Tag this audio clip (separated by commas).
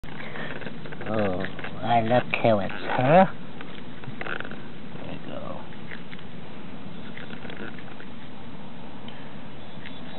Patter, mouse pattering